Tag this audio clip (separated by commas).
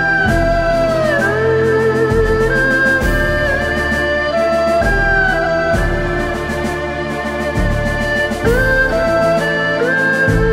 playing erhu